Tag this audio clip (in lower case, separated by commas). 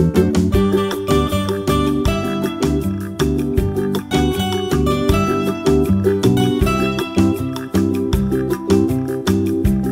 music